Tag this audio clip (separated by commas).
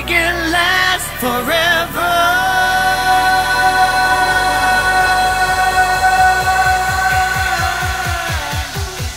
Pop music